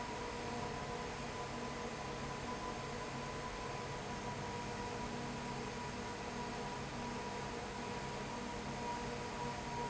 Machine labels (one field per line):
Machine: fan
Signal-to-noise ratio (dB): 0 dB